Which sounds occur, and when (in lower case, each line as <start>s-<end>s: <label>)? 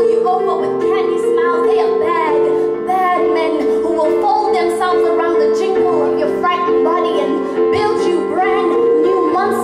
0.0s-9.6s: music
0.2s-2.4s: female singing
2.5s-2.7s: breathing
2.9s-7.3s: female singing
7.4s-7.6s: breathing
7.7s-9.6s: female singing